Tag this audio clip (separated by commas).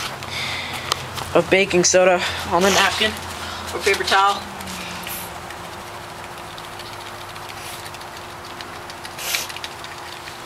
Speech